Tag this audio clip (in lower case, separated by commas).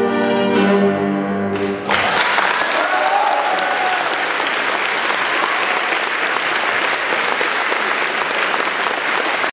cello, piano, applause, violin, orchestra, musical instrument